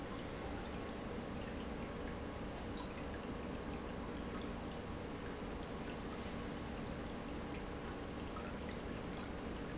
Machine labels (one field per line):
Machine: pump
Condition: normal